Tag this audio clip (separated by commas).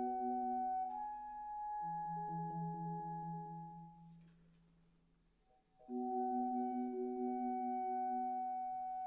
Clarinet